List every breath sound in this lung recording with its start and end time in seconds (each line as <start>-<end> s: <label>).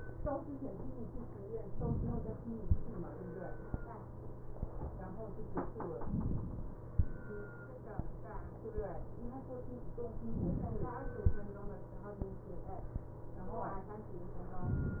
1.65-2.60 s: inhalation
5.98-6.94 s: inhalation
10.23-11.18 s: inhalation